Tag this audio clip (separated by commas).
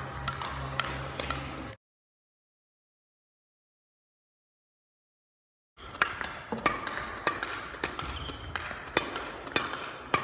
playing badminton